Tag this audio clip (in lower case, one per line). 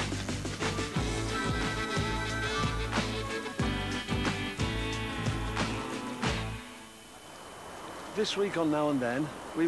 music
speech